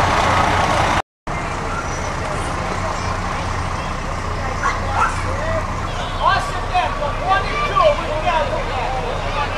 A rumbling of an engine and men and children talking in the background